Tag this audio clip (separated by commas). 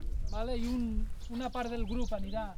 Bird vocalization, Wild animals, Animal, Bird